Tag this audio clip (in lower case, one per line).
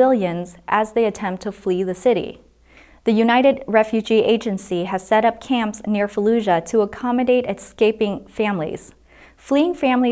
speech